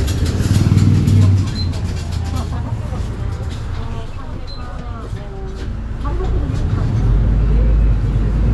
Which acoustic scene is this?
bus